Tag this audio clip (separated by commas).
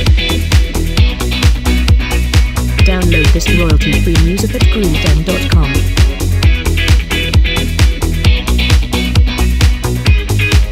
Background music, Speech, Music